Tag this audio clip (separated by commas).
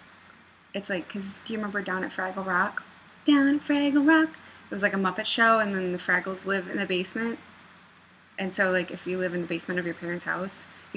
Speech